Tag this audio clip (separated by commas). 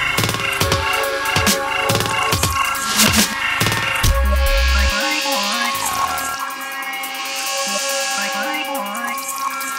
Dubstep, Music